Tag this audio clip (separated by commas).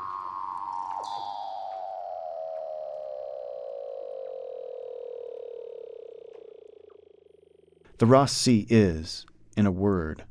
Speech